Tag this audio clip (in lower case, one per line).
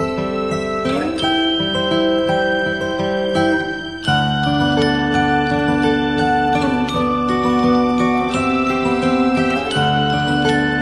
pizzicato